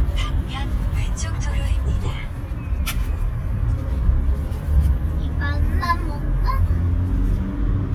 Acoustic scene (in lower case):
car